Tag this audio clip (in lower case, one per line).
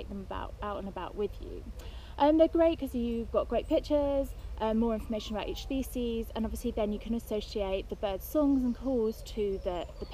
speech